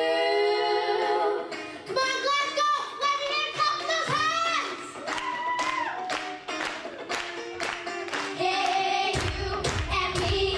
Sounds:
child singing
choir
music
female singing

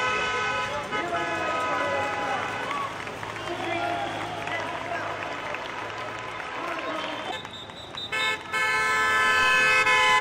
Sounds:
speech
outside, urban or man-made

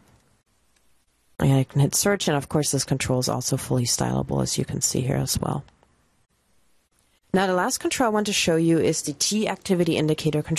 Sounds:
speech

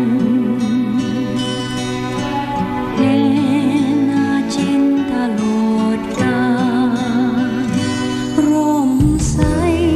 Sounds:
music

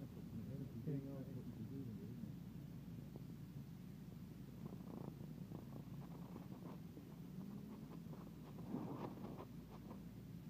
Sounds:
speech

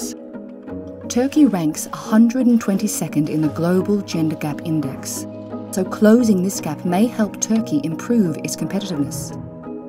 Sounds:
music
speech

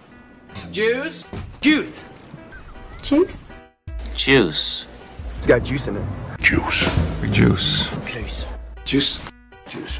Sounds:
speech
music

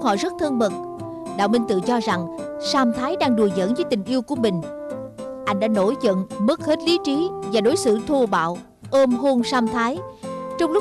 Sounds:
speech
music

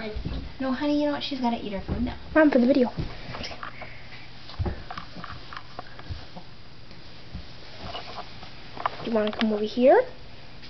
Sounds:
speech

